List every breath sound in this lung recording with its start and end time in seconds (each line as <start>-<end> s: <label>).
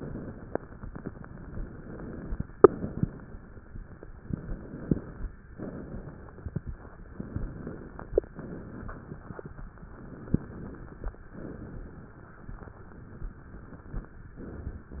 0.00-0.83 s: exhalation
0.88-2.40 s: inhalation
2.53-4.05 s: exhalation
4.18-5.39 s: inhalation
5.47-7.04 s: exhalation
7.08-8.28 s: inhalation
8.34-9.73 s: exhalation
9.81-11.20 s: inhalation
11.24-14.22 s: exhalation
14.28-14.92 s: inhalation
14.92-15.00 s: exhalation